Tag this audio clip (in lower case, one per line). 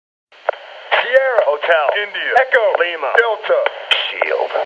speech